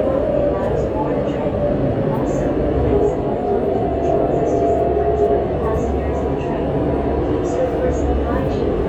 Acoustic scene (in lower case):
subway train